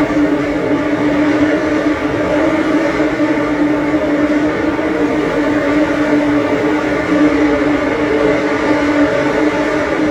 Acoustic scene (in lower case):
subway train